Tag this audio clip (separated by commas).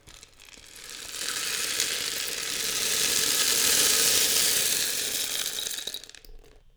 Music, Percussion, Rattle (instrument), Musical instrument